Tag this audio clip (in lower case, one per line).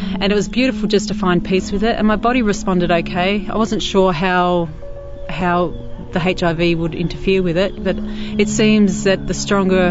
speech
music